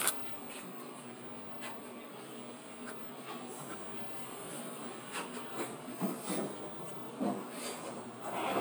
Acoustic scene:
bus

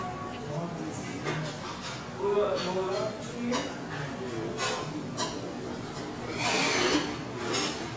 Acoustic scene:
restaurant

